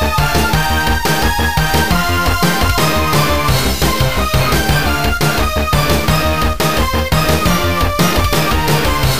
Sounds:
Theme music, Music

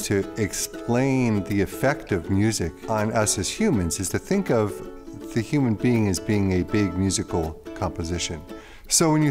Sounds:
Speech, Music

